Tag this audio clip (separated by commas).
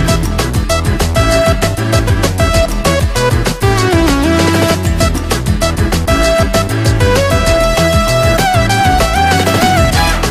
Music